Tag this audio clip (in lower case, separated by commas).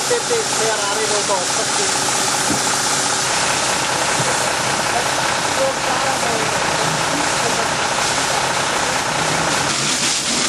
truck, vehicle, speech, idling